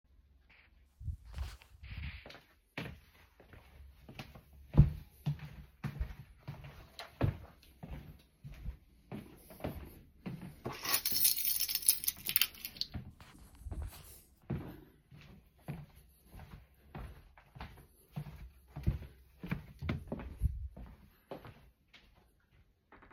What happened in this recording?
walking through the house, grabbing a keychain, walking back